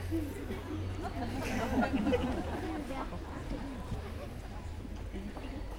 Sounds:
human voice
laughter

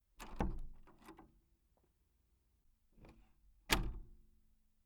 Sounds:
slam
door
domestic sounds

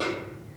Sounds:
drum
musical instrument
percussion
music
snare drum

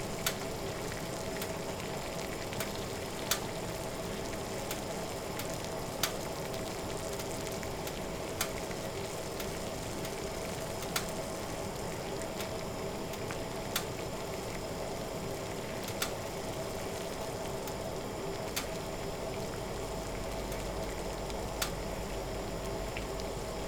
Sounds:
liquid
boiling

